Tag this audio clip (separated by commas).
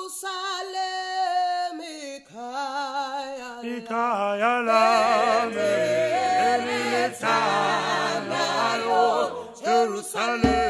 Choir, Female singing, Male singing